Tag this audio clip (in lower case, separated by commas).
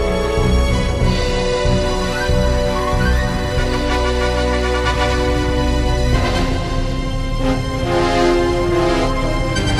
music